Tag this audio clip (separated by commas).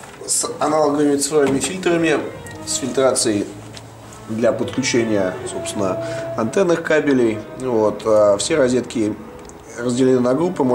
Music, Speech